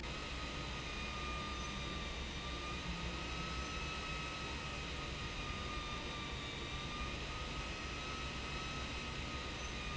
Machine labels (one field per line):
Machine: pump